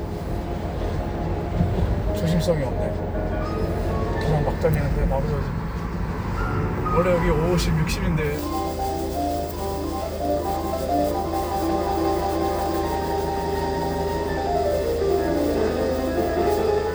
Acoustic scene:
car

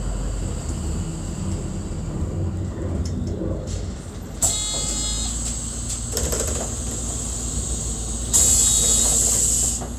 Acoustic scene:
bus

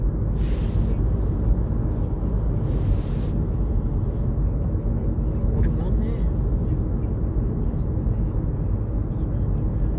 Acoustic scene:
car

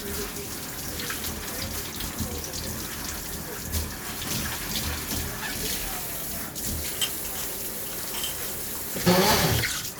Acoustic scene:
kitchen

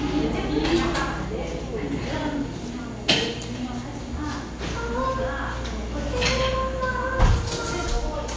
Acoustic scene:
cafe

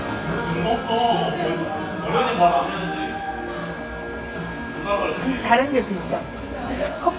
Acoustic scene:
cafe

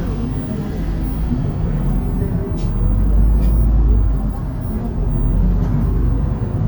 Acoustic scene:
bus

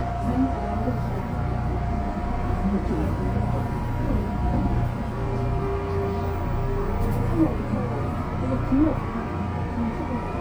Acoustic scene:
subway train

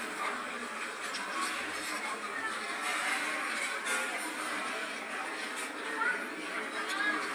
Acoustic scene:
restaurant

